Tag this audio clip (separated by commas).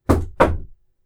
Knock, Door, home sounds